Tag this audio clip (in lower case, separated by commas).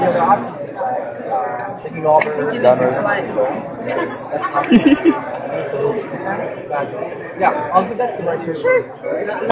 speech